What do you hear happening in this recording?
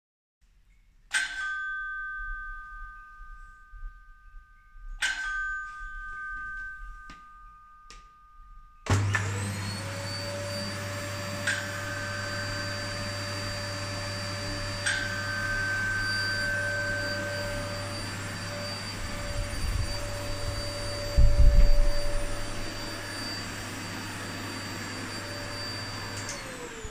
i stay on my fron door ringing and then i move to the vacuum to power on